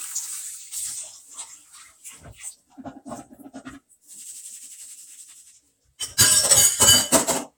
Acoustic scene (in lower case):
kitchen